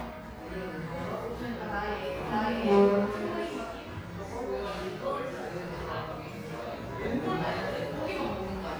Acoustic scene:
cafe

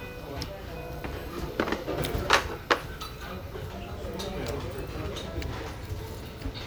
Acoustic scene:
restaurant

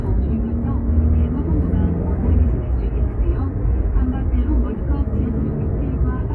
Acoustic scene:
car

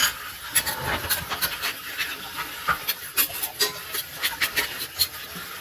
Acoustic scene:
kitchen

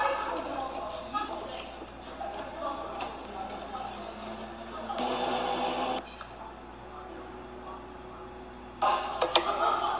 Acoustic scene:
cafe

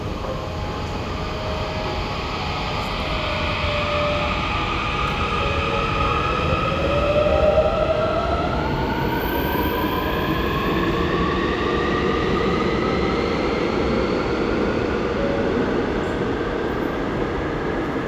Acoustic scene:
subway station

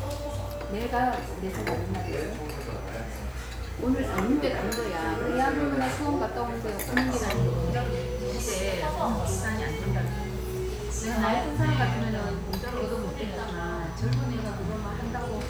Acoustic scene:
restaurant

